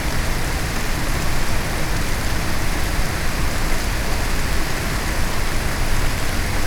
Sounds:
Rain, Water

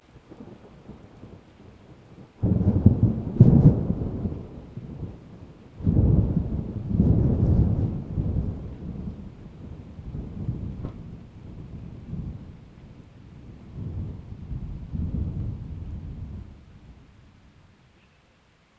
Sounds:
Thunder, Thunderstorm

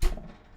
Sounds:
Domestic sounds, Door

